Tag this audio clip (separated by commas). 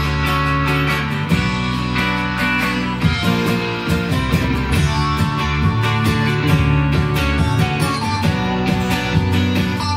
Acoustic guitar, Musical instrument, Plucked string instrument, Guitar, Music